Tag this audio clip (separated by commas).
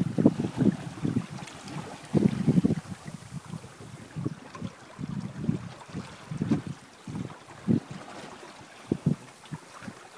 Boat, Wind noise (microphone), Waves, Wind